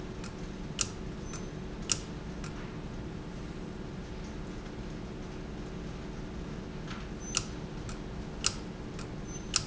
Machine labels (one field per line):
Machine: valve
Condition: abnormal